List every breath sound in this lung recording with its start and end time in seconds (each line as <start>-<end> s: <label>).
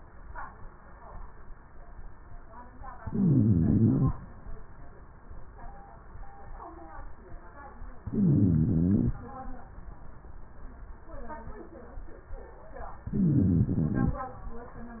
2.96-4.18 s: inhalation
2.96-4.18 s: wheeze
7.99-9.21 s: inhalation
7.99-9.21 s: wheeze
13.07-14.22 s: inhalation
13.07-14.22 s: wheeze